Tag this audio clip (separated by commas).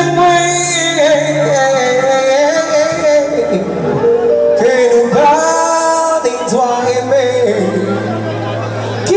Music, Speech